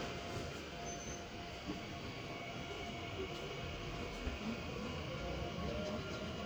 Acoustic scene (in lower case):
subway train